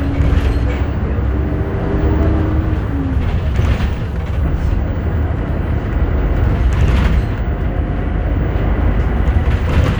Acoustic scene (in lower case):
bus